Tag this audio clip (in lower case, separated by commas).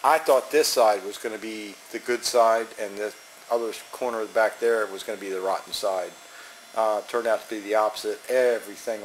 speech